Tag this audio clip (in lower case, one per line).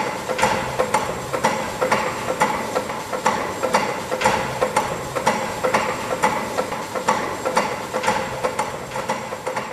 engine